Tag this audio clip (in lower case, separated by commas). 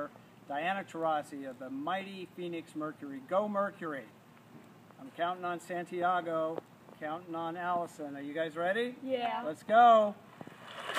speech, kid speaking